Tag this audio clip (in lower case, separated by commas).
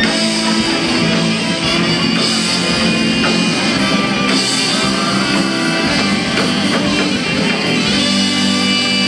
music, inside a large room or hall